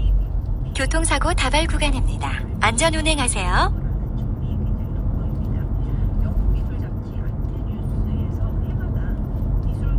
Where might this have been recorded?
in a car